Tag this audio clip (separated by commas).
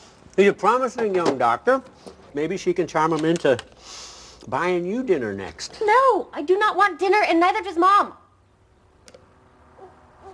Speech